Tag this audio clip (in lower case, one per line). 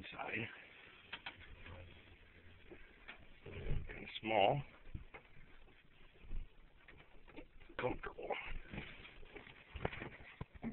speech